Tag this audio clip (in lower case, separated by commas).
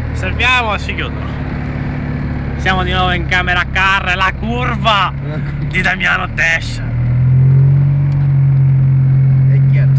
car, vehicle, speech, motor vehicle (road)